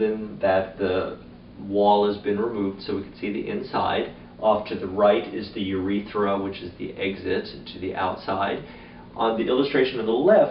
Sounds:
speech

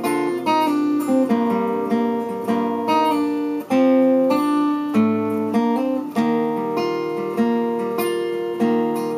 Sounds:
musical instrument
music
acoustic guitar
playing acoustic guitar

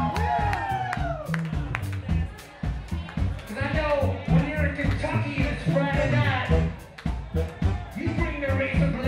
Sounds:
speech
music

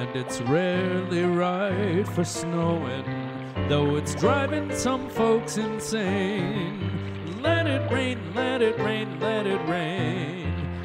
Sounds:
raining
raindrop
music

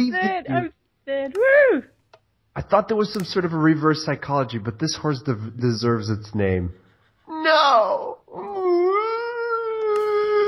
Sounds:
speech

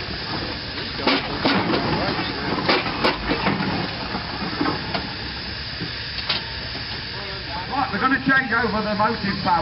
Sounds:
steam
hiss

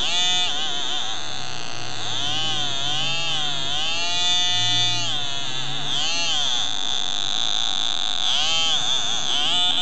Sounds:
theremin

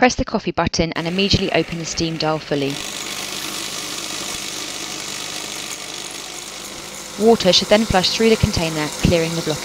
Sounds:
pump (liquid)

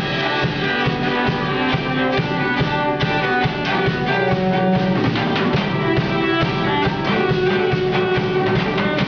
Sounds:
music
musical instrument
cello

